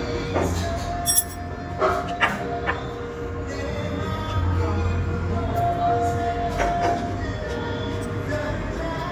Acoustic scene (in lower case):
restaurant